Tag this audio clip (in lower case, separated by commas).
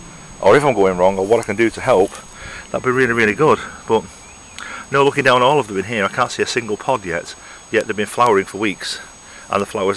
speech, outside, rural or natural